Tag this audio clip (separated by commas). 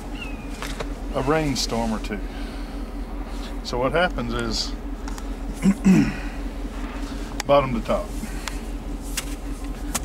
Speech